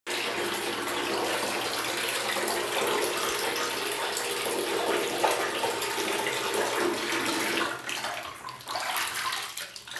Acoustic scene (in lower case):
restroom